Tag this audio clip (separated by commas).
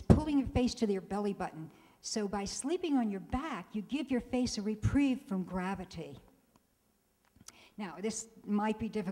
Speech